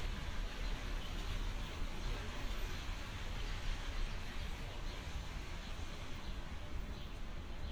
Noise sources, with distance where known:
background noise

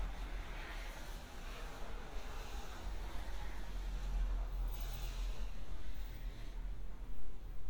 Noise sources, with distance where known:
background noise

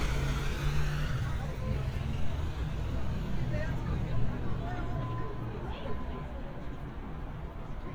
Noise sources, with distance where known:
engine of unclear size, near; person or small group talking, near

